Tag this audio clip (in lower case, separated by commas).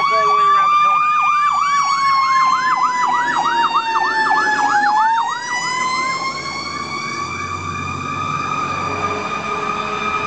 speech, vehicle